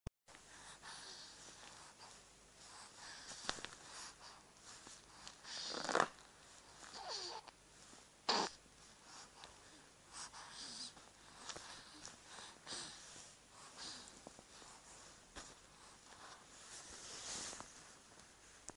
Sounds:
breathing, respiratory sounds

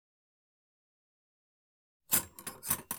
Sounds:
domestic sounds, silverware

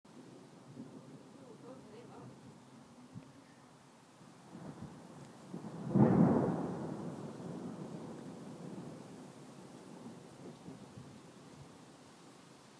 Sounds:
thunder, water, rain, thunderstorm

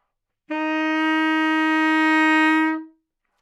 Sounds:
musical instrument, music, woodwind instrument

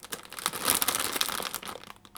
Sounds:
crushing, crackle

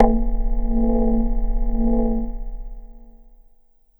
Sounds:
keyboard (musical), music, musical instrument

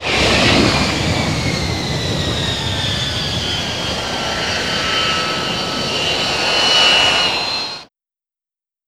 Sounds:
vehicle, aircraft, fixed-wing aircraft

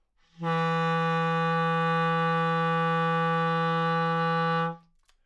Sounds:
wind instrument, musical instrument, music

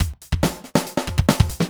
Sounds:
drum kit, music, musical instrument, percussion

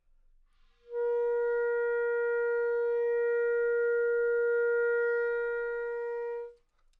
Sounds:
musical instrument, woodwind instrument, music

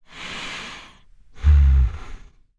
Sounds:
breathing, respiratory sounds

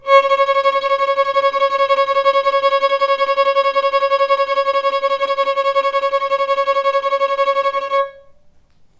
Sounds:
musical instrument, bowed string instrument, music

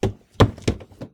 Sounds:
wood, run, walk

